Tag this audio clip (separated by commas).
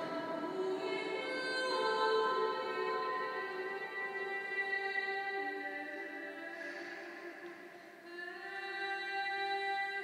Female singing